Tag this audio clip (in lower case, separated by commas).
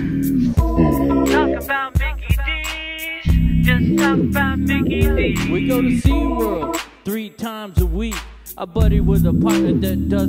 music, pop music